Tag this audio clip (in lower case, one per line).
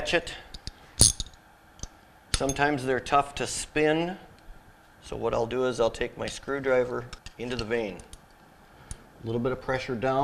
speech